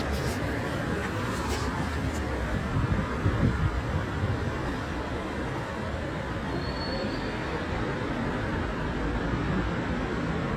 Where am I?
on a street